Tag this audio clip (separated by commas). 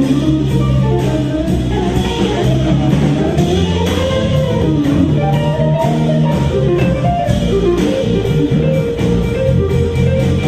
Music, Electric guitar, Guitar, Musical instrument, Plucked string instrument, Strum